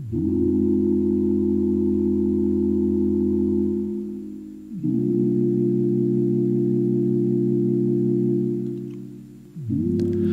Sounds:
music

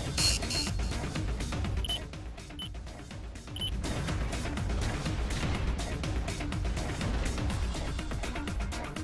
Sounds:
music

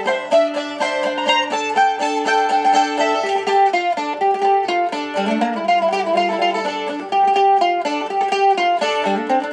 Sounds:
music, mandolin

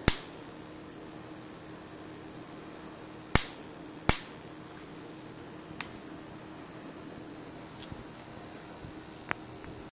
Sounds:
hum, mains hum

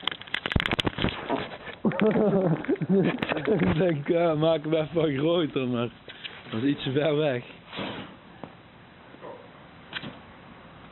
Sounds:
crackle, speech, eruption

